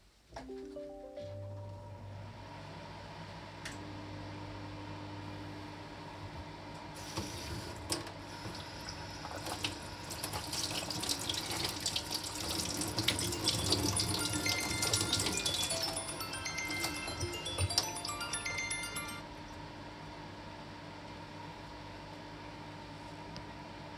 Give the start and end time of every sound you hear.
[0.21, 3.09] phone ringing
[1.16, 23.98] microwave
[6.85, 18.00] running water
[12.99, 19.52] phone ringing

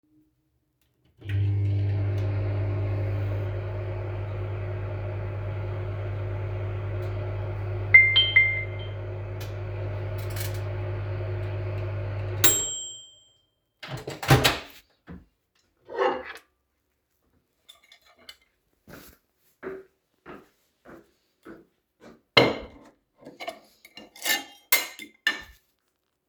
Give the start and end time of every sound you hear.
[1.19, 14.93] microwave
[7.84, 8.80] phone ringing
[15.66, 16.65] cutlery and dishes
[17.49, 18.53] cutlery and dishes
[18.81, 22.33] footsteps
[22.31, 25.62] cutlery and dishes

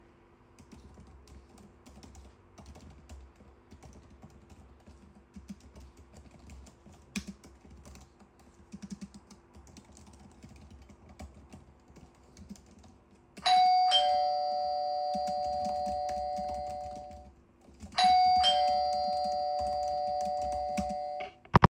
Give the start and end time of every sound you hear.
[0.69, 21.38] keyboard typing
[13.34, 21.38] bell ringing

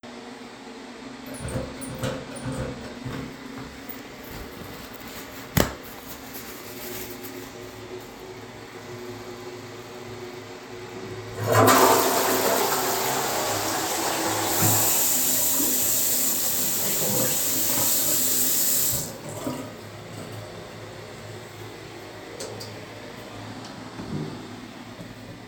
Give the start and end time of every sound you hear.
[11.36, 15.52] toilet flushing
[14.47, 19.14] running water
[19.31, 19.90] running water
[22.33, 22.71] light switch

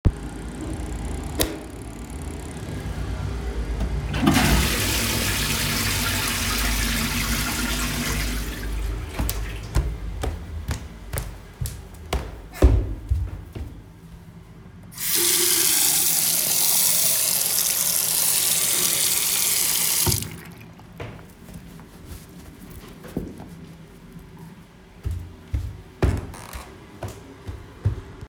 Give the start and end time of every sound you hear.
[1.25, 1.75] light switch
[4.07, 9.10] toilet flushing
[9.11, 14.09] footsteps
[14.84, 20.46] running water
[24.99, 28.28] footsteps

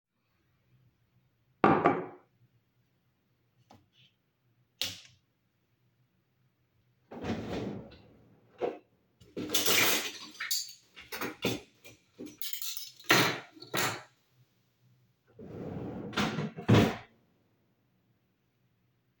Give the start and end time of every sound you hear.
[1.59, 2.22] cutlery and dishes
[4.69, 5.12] light switch
[7.06, 7.99] wardrobe or drawer
[9.28, 14.08] cutlery and dishes
[15.43, 17.02] wardrobe or drawer

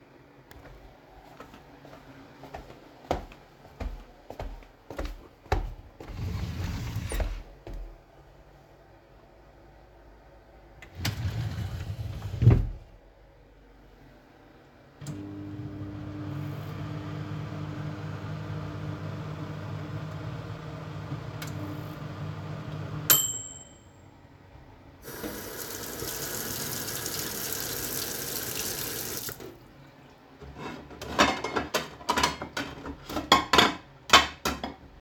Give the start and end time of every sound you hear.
[0.61, 8.01] footsteps
[5.99, 8.02] wardrobe or drawer
[10.82, 12.86] wardrobe or drawer
[14.99, 23.94] microwave
[25.01, 29.57] running water
[30.40, 35.01] cutlery and dishes

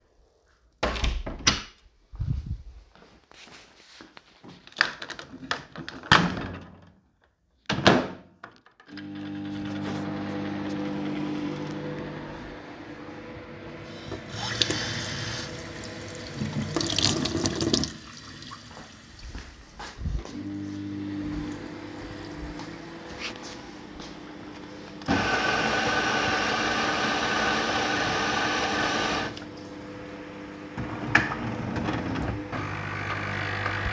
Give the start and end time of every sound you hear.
[0.75, 1.89] door
[4.64, 33.92] microwave
[14.22, 33.92] running water
[25.07, 29.41] coffee machine
[31.03, 33.92] coffee machine

